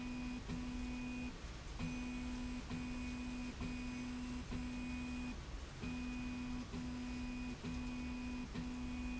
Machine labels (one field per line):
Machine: slide rail